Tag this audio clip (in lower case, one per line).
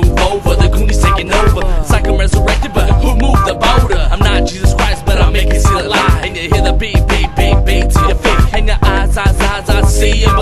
music